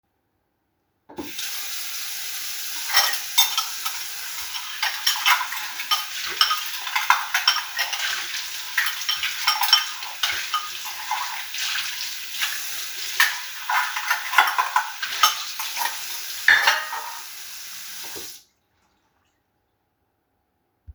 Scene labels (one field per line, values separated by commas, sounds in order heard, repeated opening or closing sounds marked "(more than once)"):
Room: kitchen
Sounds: running water, cutlery and dishes